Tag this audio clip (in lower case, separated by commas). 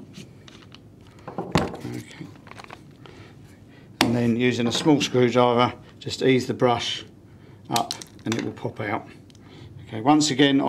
speech